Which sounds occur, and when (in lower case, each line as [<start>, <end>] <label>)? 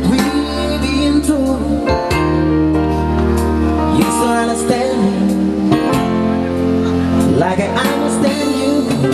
[0.00, 1.84] male singing
[0.00, 9.13] music
[3.76, 5.69] male singing
[6.23, 6.57] speech
[6.77, 6.97] speech
[7.33, 8.89] male singing